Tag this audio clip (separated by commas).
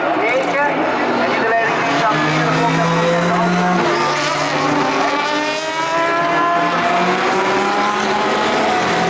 Car passing by